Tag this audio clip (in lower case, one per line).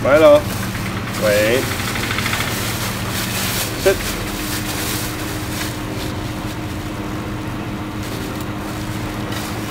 dog whimpering